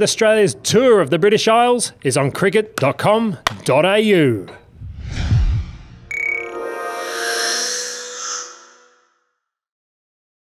A man speaks, some loud smacks followed by music